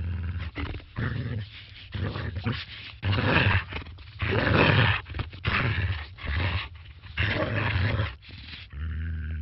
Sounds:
animal, cat, pets

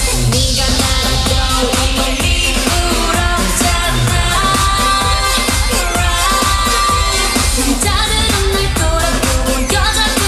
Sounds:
music of asia

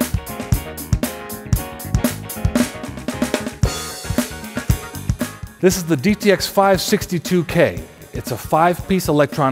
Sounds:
drum kit, drum, snare drum, bass drum, percussion, rimshot

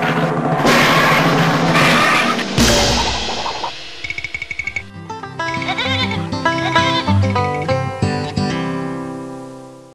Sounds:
music, sheep

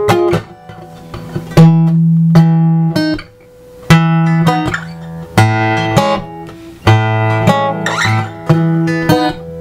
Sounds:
banjo, guitar, musical instrument, plucked string instrument, music

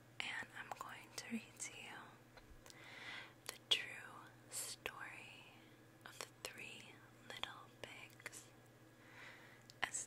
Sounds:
whispering, speech

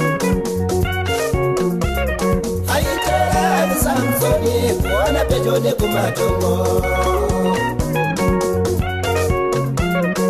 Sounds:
music

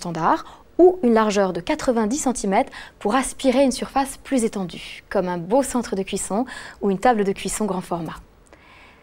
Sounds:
speech

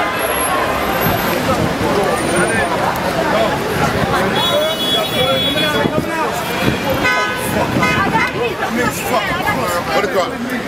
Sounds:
speech

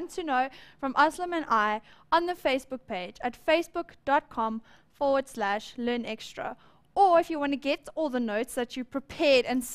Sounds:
speech

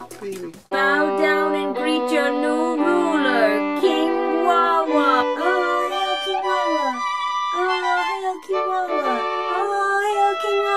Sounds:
fiddle

